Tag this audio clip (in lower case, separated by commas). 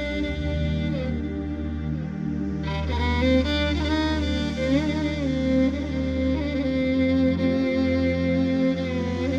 music, musical instrument, violin